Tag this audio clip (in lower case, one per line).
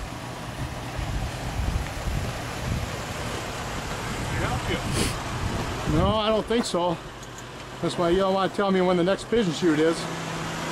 speech